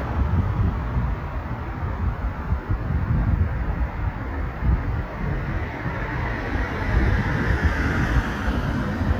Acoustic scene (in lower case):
street